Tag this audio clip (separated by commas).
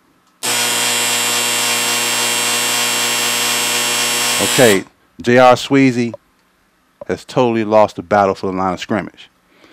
Electric toothbrush